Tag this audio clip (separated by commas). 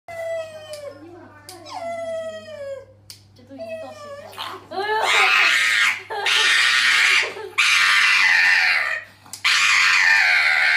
people screaming